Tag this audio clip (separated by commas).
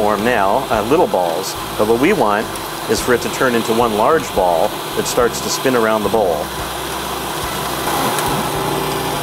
Speech, inside a small room, Music